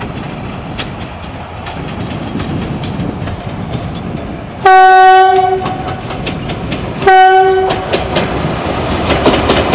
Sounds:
Train horn, train wagon, Clickety-clack, Train, Rail transport

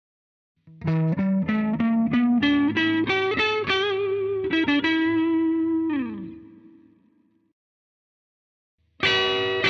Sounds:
Music

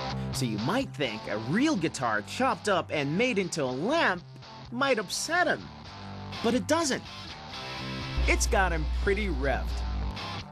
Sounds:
Plucked string instrument, Speech, Electric guitar, Guitar, Music, Musical instrument

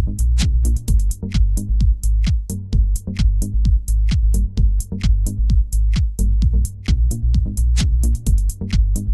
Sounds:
Music

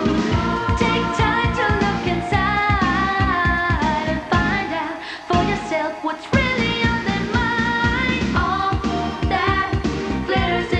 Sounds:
Music of Asia, Music, Singing

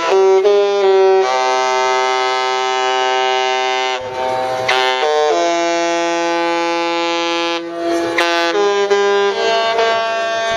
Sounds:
Music

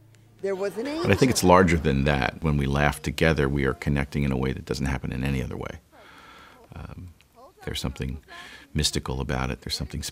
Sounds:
Speech

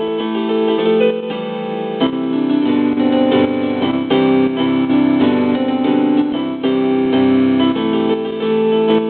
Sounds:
Music

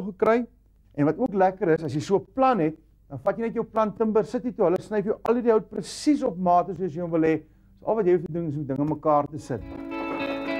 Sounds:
Speech, Music

